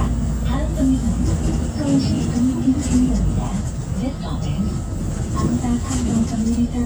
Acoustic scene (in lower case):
bus